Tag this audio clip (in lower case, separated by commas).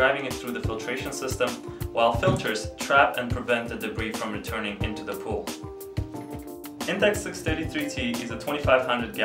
music, speech